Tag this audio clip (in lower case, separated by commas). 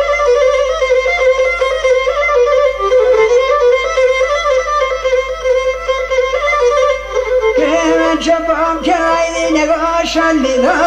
traditional music, music